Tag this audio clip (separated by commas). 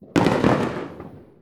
Fireworks, Explosion